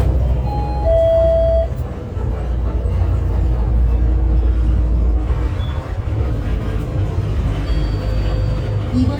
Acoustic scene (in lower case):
bus